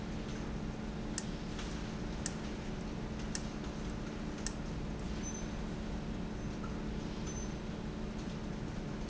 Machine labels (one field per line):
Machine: valve